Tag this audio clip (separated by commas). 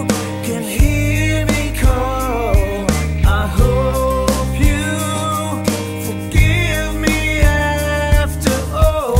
Sad music, Music